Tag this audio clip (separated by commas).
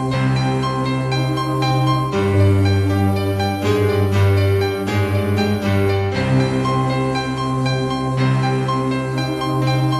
playing piano, Musical instrument, Piano, Keyboard (musical), Music